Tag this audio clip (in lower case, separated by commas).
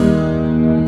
plucked string instrument, music, guitar, musical instrument